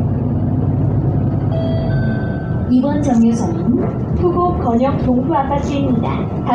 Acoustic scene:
bus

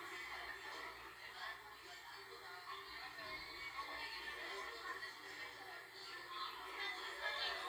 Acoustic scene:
crowded indoor space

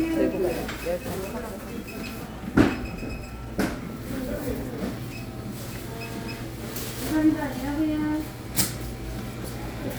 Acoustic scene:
crowded indoor space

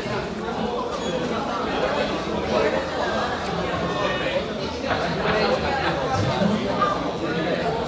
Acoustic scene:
crowded indoor space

